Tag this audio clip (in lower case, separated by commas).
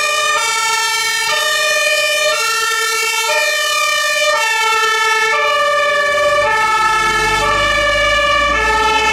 fire truck siren